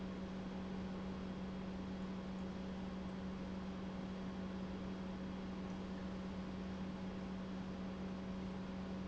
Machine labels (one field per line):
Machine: pump